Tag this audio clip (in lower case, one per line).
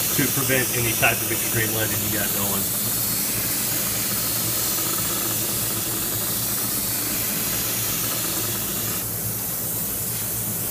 hiss